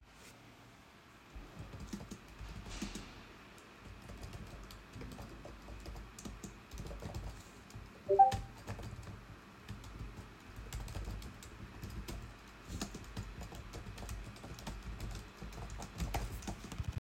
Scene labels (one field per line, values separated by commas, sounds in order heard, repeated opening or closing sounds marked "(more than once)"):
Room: bedroom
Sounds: keyboard typing, phone ringing